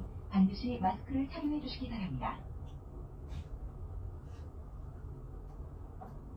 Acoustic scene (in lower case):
bus